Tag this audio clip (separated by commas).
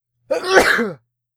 Respiratory sounds, Sneeze